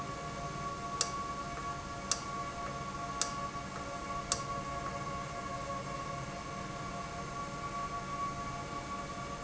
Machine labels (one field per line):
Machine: valve